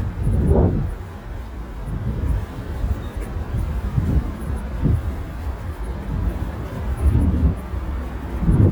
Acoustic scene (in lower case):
residential area